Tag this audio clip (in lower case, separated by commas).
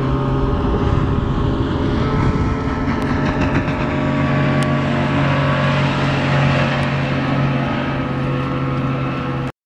vehicle, motorboat, water vehicle